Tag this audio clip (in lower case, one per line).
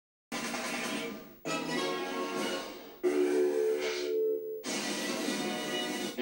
television
music